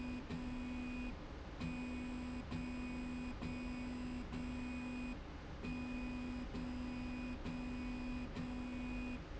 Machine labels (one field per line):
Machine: slide rail